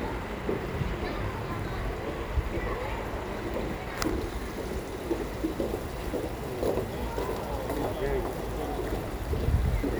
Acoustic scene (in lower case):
park